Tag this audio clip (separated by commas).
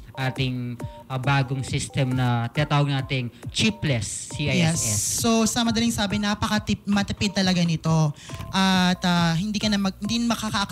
Speech, Music